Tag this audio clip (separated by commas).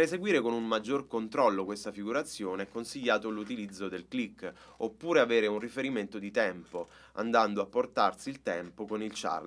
Speech